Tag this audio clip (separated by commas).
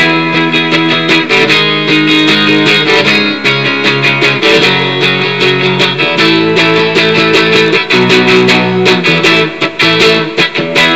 Music, Strum, Plucked string instrument, Musical instrument, Guitar